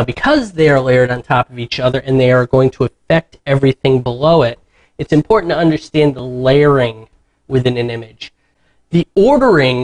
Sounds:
speech synthesizer

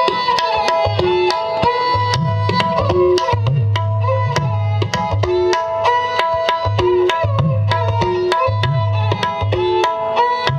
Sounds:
playing tabla

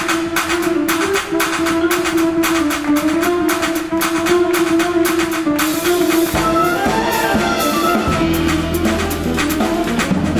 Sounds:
music

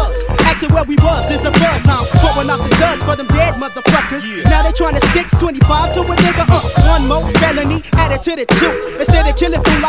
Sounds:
music
rapping

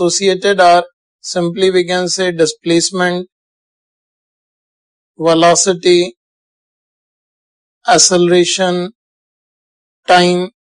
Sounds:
speech

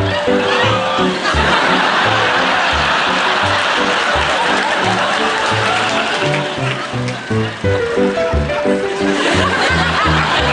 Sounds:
laughter

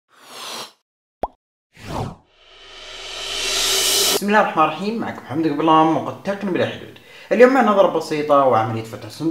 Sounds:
plop
speech

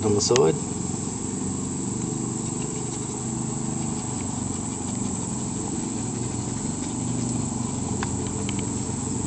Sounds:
speech

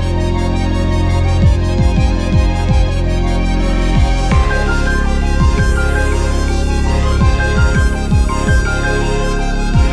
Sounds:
soundtrack music
music

